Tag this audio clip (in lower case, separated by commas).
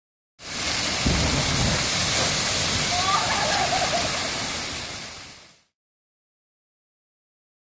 waterfall